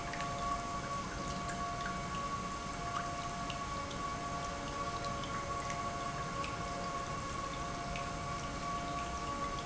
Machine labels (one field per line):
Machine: pump